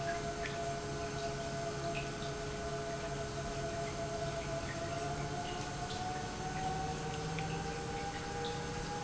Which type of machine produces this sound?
pump